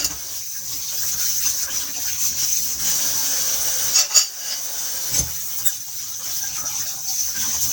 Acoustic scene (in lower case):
kitchen